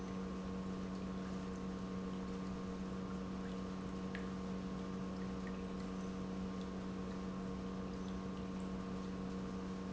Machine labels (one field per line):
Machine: pump